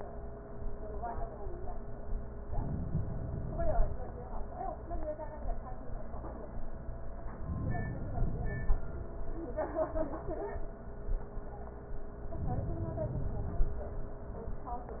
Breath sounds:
Inhalation: 2.51-4.01 s, 7.38-8.88 s, 12.31-13.81 s

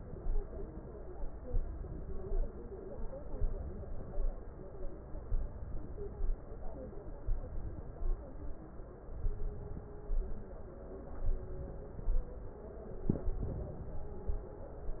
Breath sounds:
Inhalation: 0.00-0.81 s, 1.48-2.30 s, 3.17-4.12 s, 5.25-6.19 s, 7.26-8.21 s, 9.10-10.05 s, 11.17-12.12 s, 13.11-14.33 s

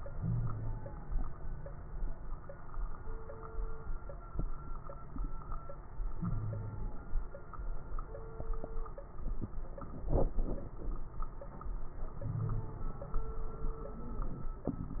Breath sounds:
Wheeze: 0.19-0.86 s, 6.19-6.96 s, 12.22-12.87 s

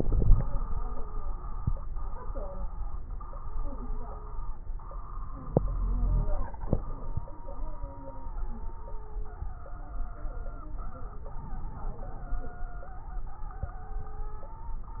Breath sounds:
Inhalation: 0.00-0.40 s, 5.46-6.46 s, 11.39-12.65 s
Wheeze: 5.46-6.31 s
Crackles: 0.00-0.40 s, 11.39-12.65 s

